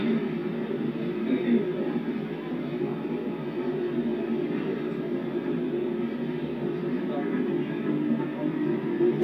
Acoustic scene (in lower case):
subway train